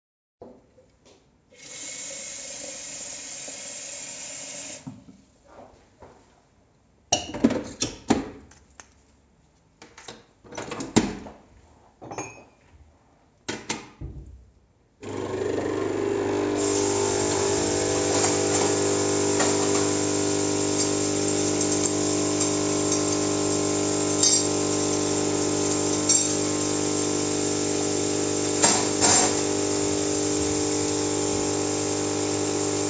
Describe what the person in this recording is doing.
I grabbed the water tank, filled it with water, inserted it into the coffee machine, inserted a capsule, grabbed a mug from the cupboard, placed it underneath the machine and started the machine. While it was running, I turned on the tap, opened the drawer, grabbed some teaspoons and closed the drawer again.